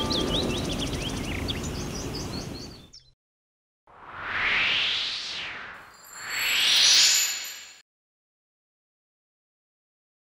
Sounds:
bird call

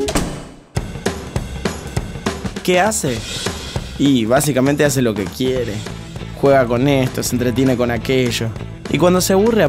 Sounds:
speech, music

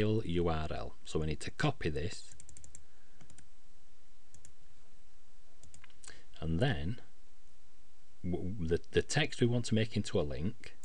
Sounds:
speech

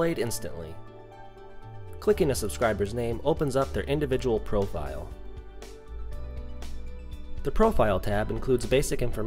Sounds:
speech, music

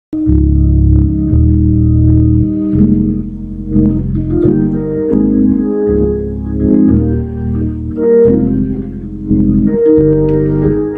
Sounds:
piano, organ, hammond organ, keyboard (musical), electric piano, playing hammond organ

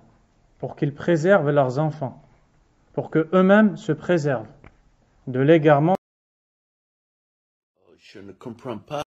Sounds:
speech

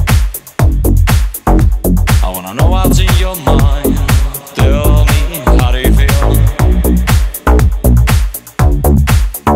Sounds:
dance music, house music, electronic music, music

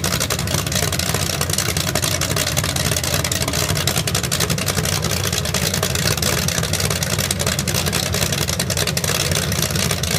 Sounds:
car engine starting

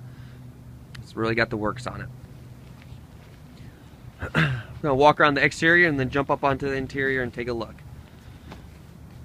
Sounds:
speech

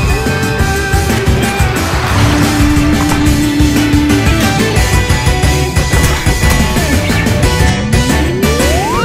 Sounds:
music

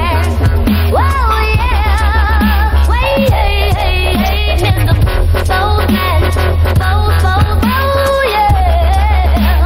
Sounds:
electronic music, dubstep, music

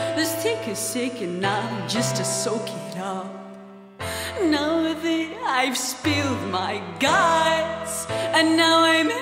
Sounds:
soundtrack music, music

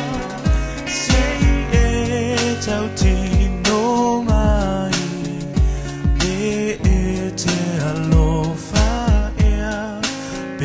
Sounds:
music

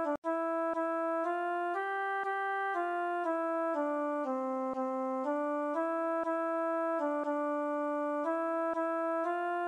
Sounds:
violin, musical instrument, music

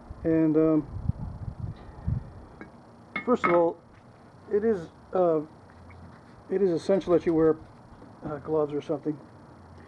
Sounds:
speech

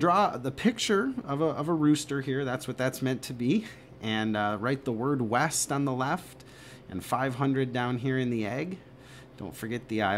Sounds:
speech

